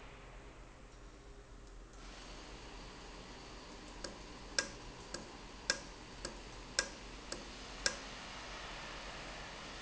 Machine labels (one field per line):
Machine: valve